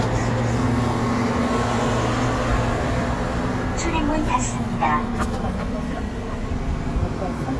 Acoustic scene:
subway station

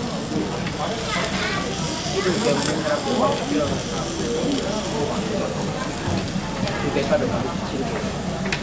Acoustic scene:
restaurant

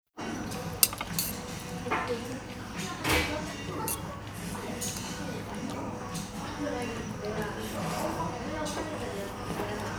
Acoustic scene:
restaurant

